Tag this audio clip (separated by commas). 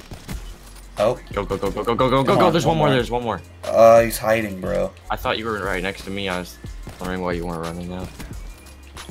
Speech, Music